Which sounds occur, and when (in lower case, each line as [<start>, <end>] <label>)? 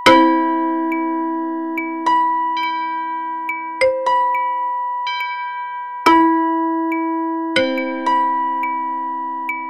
[0.00, 9.65] music